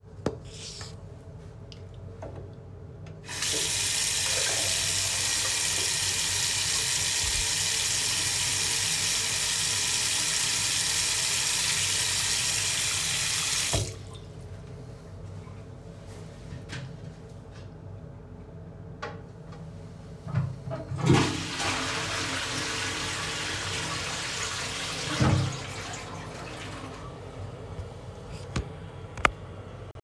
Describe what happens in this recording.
I turned on the water tap and then flush the toilet .